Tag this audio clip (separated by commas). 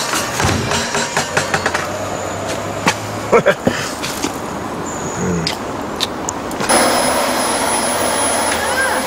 inside a small room